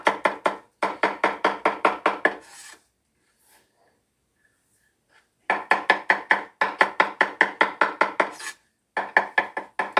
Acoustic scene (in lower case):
kitchen